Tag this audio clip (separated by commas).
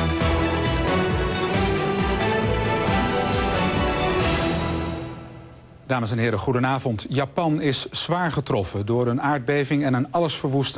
Speech, Music